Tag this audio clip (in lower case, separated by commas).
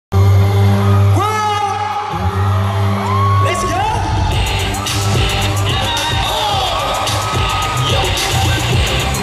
pop music